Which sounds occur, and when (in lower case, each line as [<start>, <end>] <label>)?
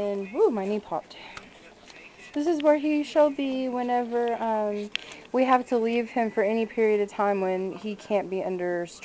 [0.00, 0.43] man speaking
[0.00, 0.99] female speech
[0.00, 9.04] mechanisms
[1.07, 1.42] breathing
[1.08, 1.14] tick
[1.11, 2.29] man speaking
[1.35, 1.40] tick
[1.88, 1.95] tick
[2.29, 2.36] tick
[2.31, 4.93] female speech
[2.57, 2.63] tick
[2.98, 3.24] man speaking
[4.25, 4.30] tick
[4.85, 5.31] man speaking
[4.94, 4.98] tick
[4.97, 5.28] breathing
[5.22, 5.27] tick
[5.33, 9.04] female speech
[6.21, 6.69] brief tone
[7.75, 8.10] man speaking